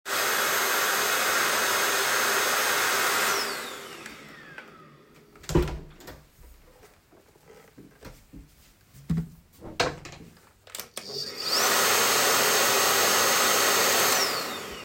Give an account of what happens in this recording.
I started vacuuming in the hallway and then stopped the vacuum cleaner. I opened a door and closed it behind me